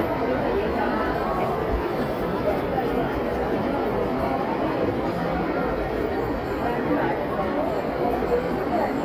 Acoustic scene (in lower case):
crowded indoor space